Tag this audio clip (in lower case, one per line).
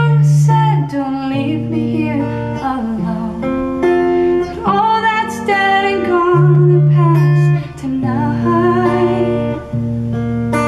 music